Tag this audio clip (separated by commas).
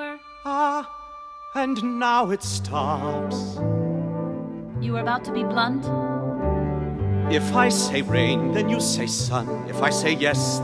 Speech, Music